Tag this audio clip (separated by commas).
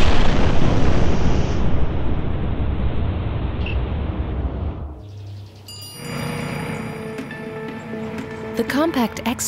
Speech, Music, Explosion